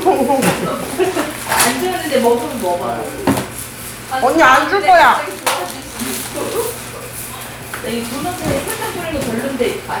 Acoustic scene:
crowded indoor space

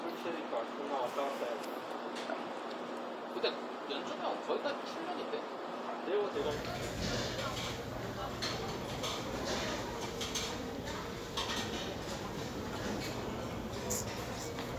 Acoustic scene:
crowded indoor space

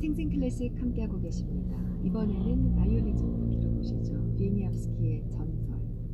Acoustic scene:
car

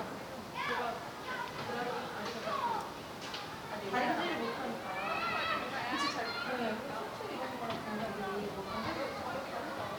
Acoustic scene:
park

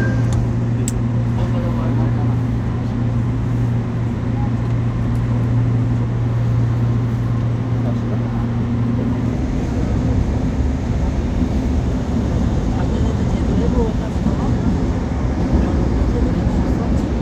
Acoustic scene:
subway train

